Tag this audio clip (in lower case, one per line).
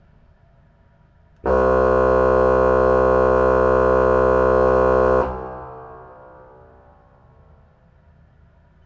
organ
music
keyboard (musical)
musical instrument